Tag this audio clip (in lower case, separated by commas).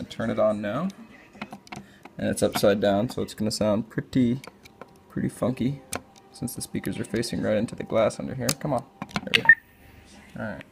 music, inside a small room, speech